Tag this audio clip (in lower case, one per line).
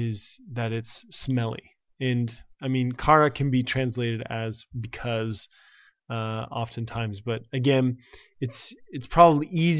monologue